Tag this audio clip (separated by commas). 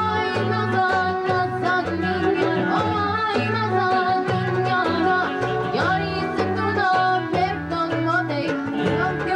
Music